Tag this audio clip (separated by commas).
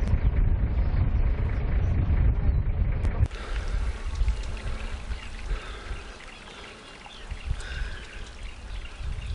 Animal